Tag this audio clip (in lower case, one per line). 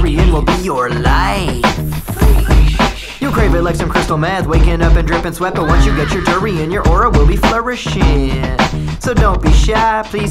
music